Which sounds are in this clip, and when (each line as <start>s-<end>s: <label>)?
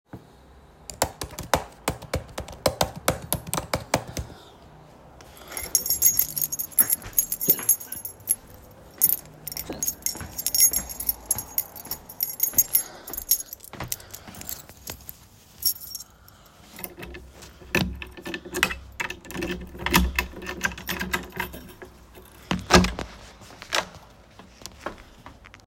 0.8s-4.7s: keyboard typing
5.4s-17.0s: keys
7.6s-15.1s: footsteps
16.8s-24.2s: door
20.7s-22.2s: keys